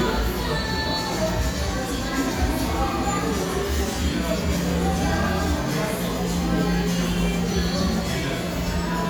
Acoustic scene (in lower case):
cafe